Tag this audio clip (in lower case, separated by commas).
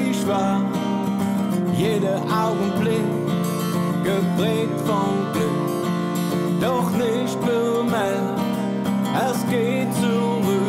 acoustic guitar, musical instrument, music, strum, plucked string instrument, guitar